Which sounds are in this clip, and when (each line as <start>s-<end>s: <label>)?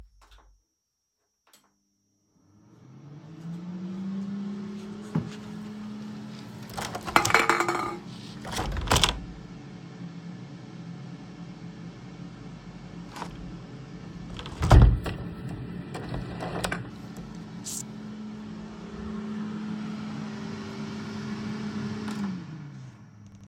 3.3s-23.1s: coffee machine
6.8s-9.4s: window
14.3s-17.6s: window